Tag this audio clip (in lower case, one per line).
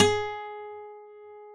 music
guitar
plucked string instrument
musical instrument
acoustic guitar